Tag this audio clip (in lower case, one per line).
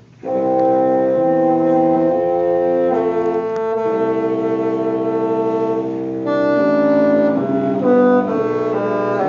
music
woodwind instrument